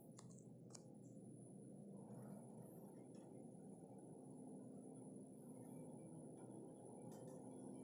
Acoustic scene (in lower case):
elevator